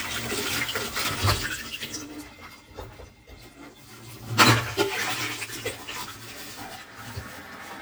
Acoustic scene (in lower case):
kitchen